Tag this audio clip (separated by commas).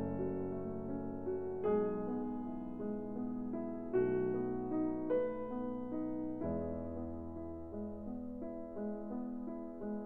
Music